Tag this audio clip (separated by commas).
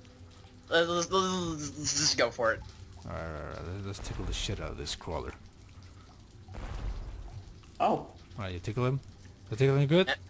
Speech